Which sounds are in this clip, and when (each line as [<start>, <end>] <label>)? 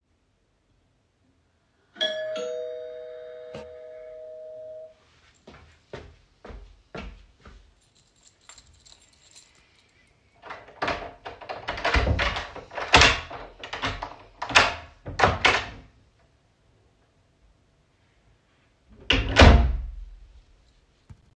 [1.91, 5.01] bell ringing
[5.51, 7.57] footsteps
[7.69, 9.66] keys
[10.40, 15.82] door
[19.06, 20.07] door